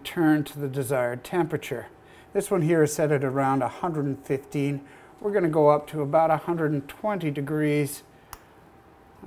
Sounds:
Speech

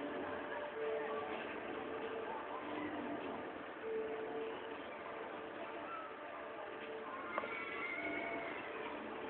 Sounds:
Music

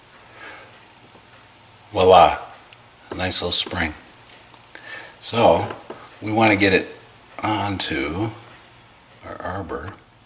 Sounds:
Speech

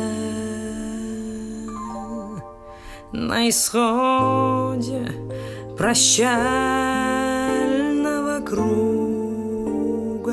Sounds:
Music

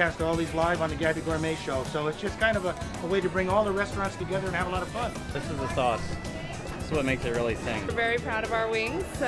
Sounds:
Music, Speech

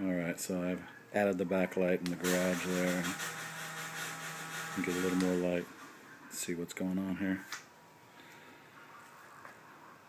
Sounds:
Speech

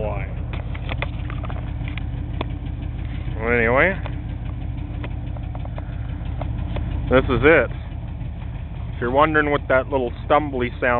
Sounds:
Vehicle, Speech

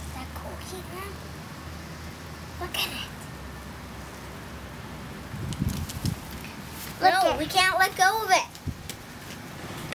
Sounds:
Child speech

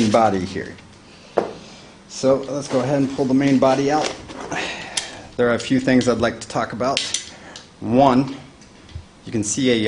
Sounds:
inside a small room, Speech

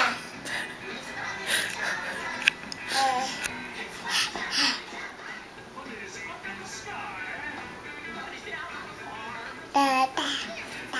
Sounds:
Music, Child speech, Speech

